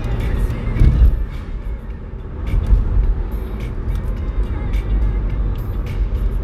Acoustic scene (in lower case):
car